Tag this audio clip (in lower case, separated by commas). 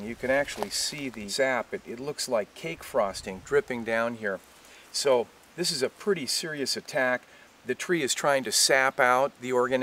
speech